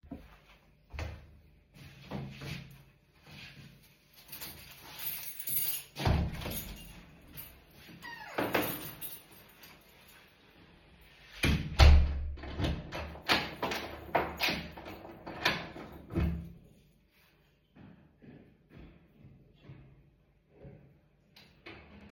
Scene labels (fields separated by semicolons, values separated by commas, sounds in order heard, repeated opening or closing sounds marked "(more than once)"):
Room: living room; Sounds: footsteps, door (more than once), keys